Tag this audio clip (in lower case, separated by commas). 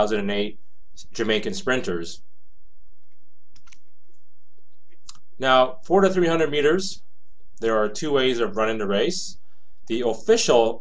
speech